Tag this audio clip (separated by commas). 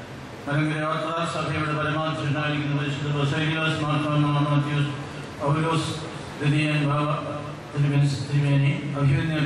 Male speech, Narration, Speech